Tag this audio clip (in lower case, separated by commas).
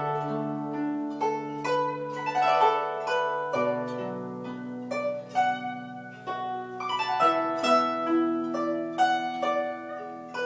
zither, music